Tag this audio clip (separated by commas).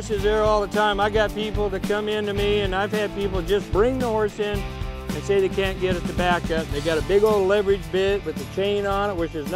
Speech, Music